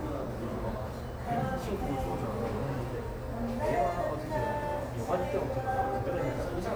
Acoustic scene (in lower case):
cafe